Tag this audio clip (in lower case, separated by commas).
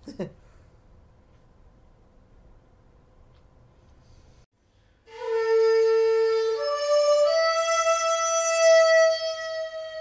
music, flute, woodwind instrument, inside a small room, musical instrument